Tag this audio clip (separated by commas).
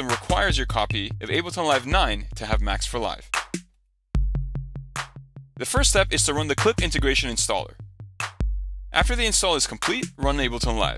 Music, Speech